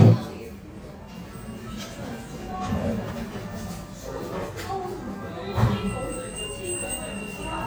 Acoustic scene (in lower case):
cafe